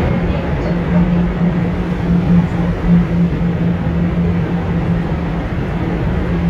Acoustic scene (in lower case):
subway train